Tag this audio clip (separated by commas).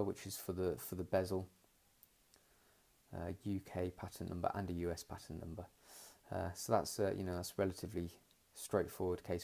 Speech